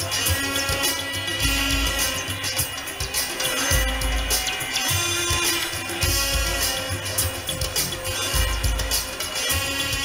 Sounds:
music, inside a large room or hall

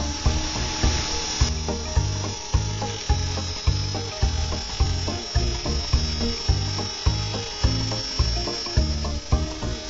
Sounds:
electric razor

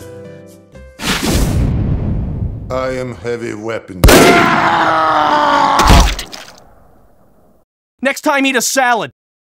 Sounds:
music, speech

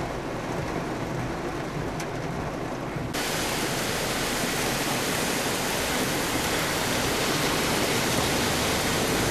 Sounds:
car, rain, outside, urban or man-made, vehicle

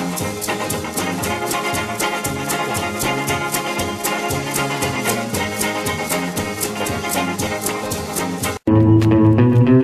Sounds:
rock and roll, music, swing music, rock music

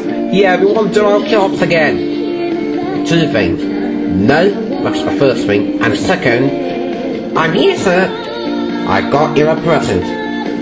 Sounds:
television, music, speech

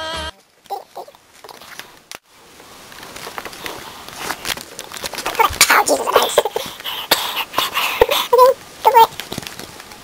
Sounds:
speech, music, inside a small room

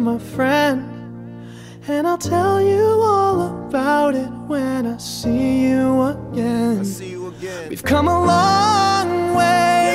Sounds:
speech, music

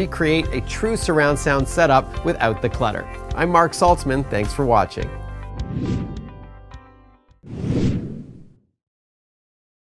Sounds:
speech, music

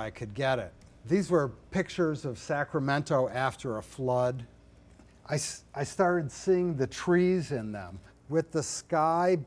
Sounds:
speech

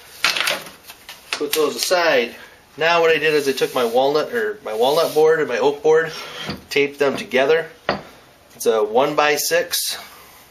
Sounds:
wood

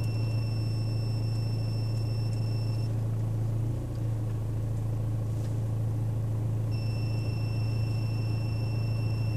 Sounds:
air conditioning noise

